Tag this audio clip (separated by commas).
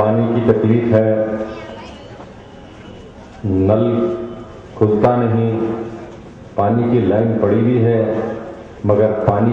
Speech, Male speech, monologue